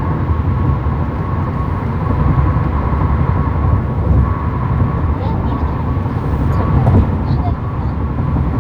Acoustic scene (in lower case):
car